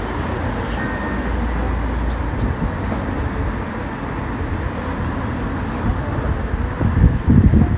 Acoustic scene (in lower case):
street